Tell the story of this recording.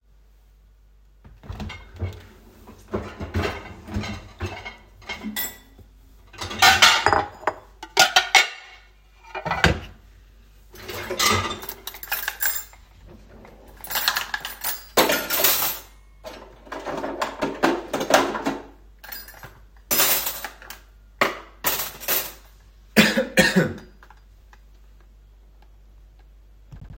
I opened the dishwasher and took out the dishes and cutlery. I then started to put them back in the drawers. At the end I coughed.